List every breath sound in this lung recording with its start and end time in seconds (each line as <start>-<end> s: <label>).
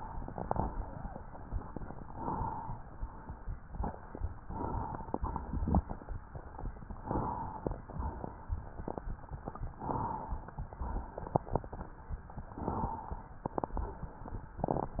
0.82-1.18 s: wheeze
2.07-2.90 s: inhalation
2.98-3.80 s: exhalation
4.48-5.31 s: inhalation
5.48-6.57 s: exhalation
7.04-7.88 s: inhalation
7.91-8.99 s: exhalation
9.77-10.61 s: inhalation
10.78-11.86 s: exhalation
12.58-13.42 s: inhalation
13.49-14.57 s: exhalation